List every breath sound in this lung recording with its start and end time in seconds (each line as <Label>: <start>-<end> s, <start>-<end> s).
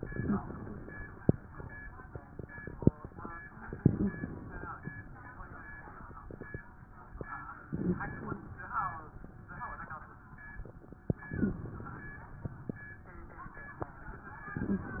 Inhalation: 0.00-0.89 s, 3.76-4.69 s, 7.68-8.46 s, 11.33-12.11 s
Wheeze: 0.12-0.42 s, 0.12-0.42 s, 3.83-4.14 s, 7.74-8.05 s, 11.38-11.69 s, 14.63-14.93 s